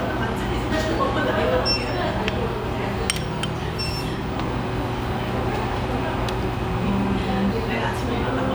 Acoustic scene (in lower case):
restaurant